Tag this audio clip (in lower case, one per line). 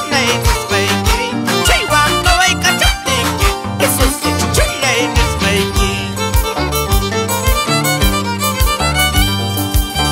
music
musical instrument
violin